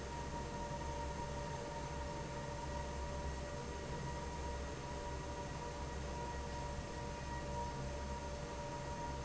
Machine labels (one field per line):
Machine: fan